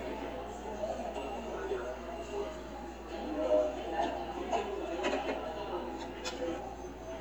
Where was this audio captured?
in a cafe